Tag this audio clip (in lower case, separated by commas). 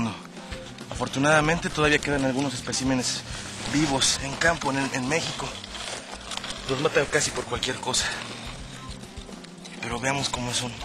outside, rural or natural, speech, music